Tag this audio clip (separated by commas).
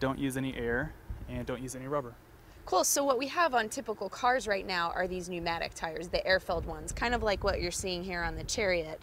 Speech